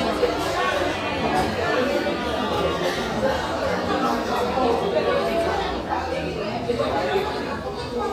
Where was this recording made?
in a crowded indoor space